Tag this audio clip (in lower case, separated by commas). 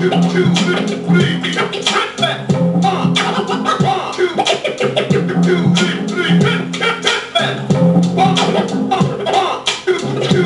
scratching (performance technique), hip hop music, music